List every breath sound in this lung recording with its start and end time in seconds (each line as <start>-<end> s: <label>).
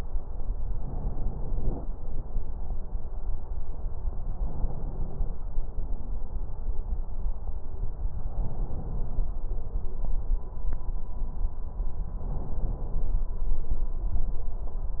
0.72-1.81 s: inhalation
4.39-5.48 s: inhalation
8.27-9.35 s: inhalation
12.21-13.30 s: inhalation